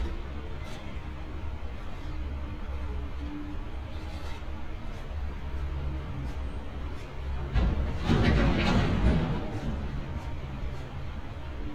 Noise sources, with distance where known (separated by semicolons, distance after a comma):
non-machinery impact